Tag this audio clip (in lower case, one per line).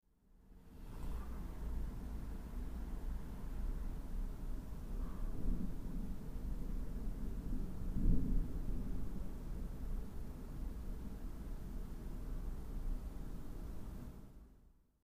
thunder
rain
water
thunderstorm